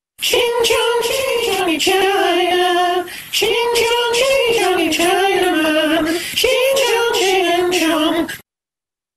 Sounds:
music

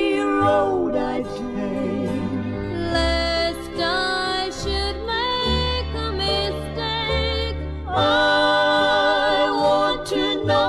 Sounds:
female singing, music, choir

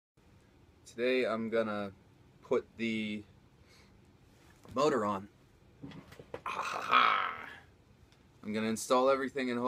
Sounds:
inside a small room, speech

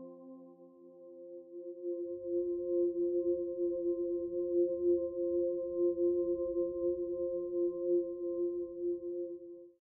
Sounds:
sound effect, music

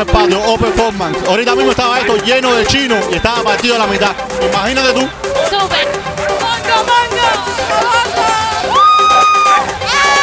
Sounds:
speech, music

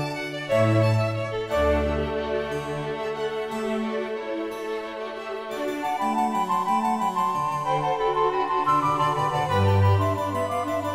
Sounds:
piano, keyboard (musical)

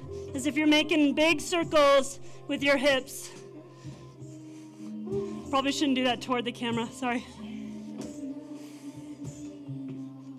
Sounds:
music, speech

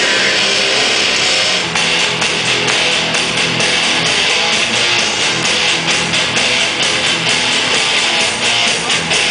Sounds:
music, pop music

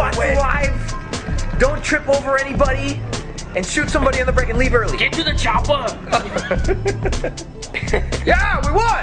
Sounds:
music, speech

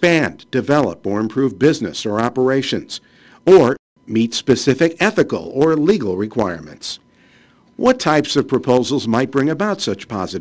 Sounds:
speech

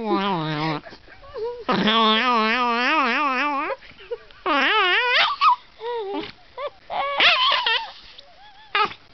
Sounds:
dog, domestic animals

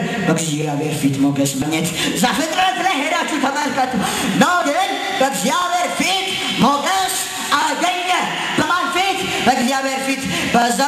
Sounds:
speech

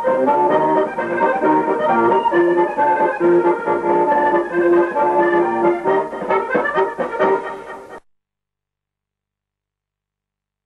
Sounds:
accordion, music, musical instrument

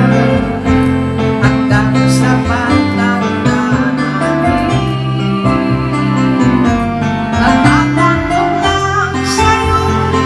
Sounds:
music, wedding music

